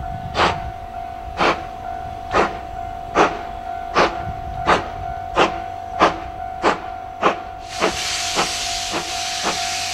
A steam train is chugging